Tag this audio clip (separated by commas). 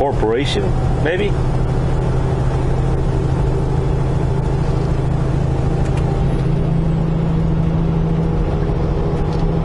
Vehicle, Truck